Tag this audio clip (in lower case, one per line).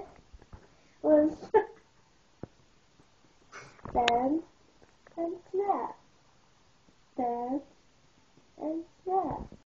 speech